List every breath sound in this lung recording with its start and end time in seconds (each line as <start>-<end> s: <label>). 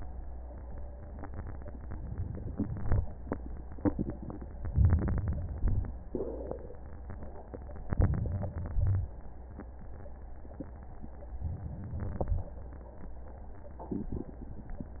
4.72-5.57 s: inhalation
5.58-6.13 s: exhalation
7.90-8.69 s: inhalation
8.73-9.13 s: exhalation
11.42-12.16 s: inhalation
12.16-12.57 s: exhalation